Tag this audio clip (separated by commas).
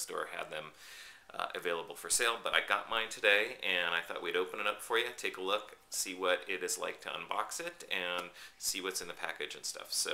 Speech